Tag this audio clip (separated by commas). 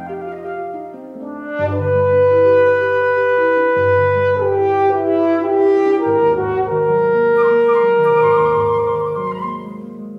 Classical music, playing french horn, Piano, French horn, Music, Musical instrument, Flute